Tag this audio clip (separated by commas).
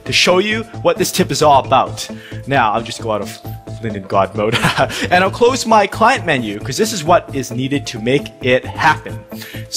Speech, Music